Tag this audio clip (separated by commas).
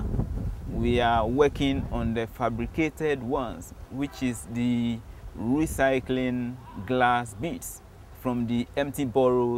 Speech